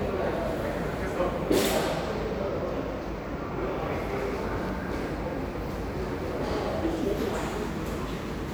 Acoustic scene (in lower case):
crowded indoor space